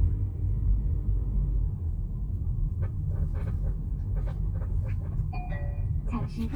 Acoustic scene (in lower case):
car